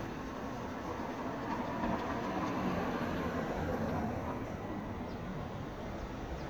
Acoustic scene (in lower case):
street